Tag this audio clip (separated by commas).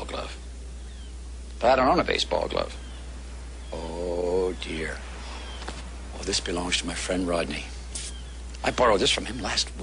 Speech